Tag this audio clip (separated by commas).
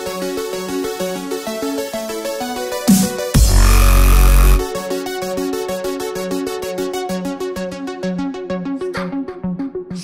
Music